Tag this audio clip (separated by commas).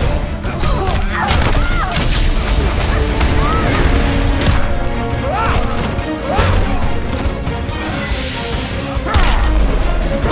Music